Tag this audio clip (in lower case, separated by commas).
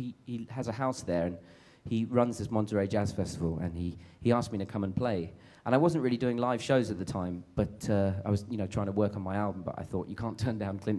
speech